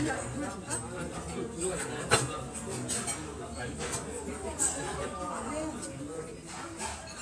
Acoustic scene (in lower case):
restaurant